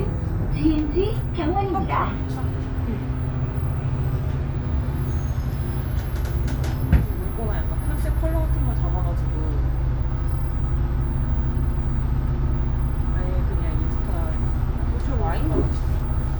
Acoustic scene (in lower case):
bus